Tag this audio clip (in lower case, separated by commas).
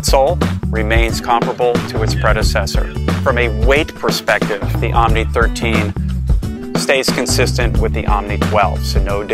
speech, music